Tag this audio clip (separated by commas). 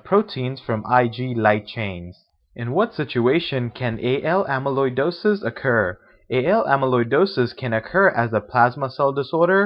Speech, monologue